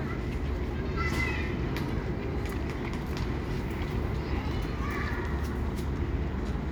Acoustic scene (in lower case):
residential area